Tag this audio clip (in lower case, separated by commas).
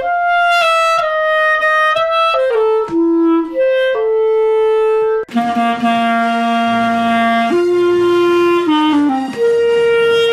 playing clarinet